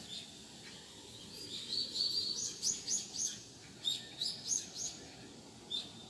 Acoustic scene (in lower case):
park